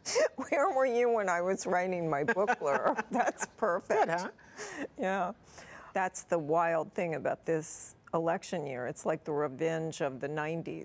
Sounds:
Speech

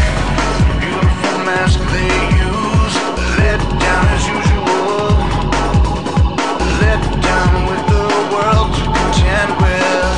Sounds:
Pop music, Funk, Music

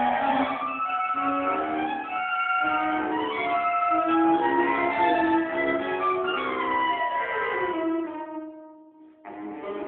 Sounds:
Clarinet, Brass instrument

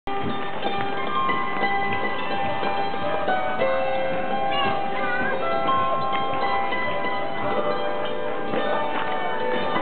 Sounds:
Speech, outside, urban or man-made, Music, Musical instrument

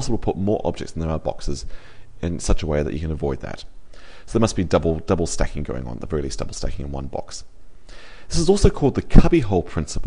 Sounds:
Speech

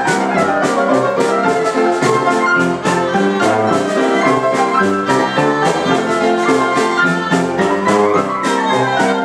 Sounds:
Music

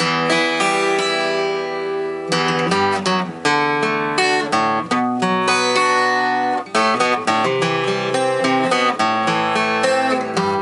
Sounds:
Acoustic guitar, Plucked string instrument, Musical instrument, Music, Guitar

